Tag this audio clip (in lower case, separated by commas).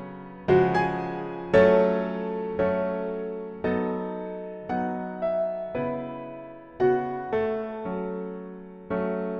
music